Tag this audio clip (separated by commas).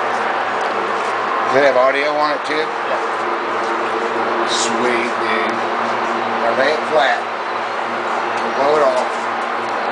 Speech